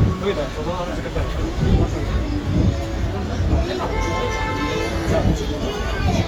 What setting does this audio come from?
street